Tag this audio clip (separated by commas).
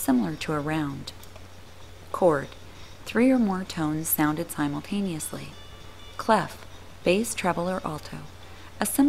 Speech, Music